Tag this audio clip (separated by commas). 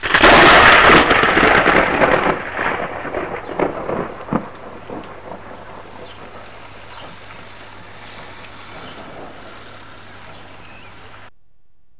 Thunderstorm, Thunder